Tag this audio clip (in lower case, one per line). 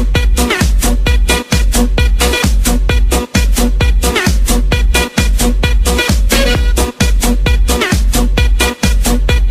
funk
music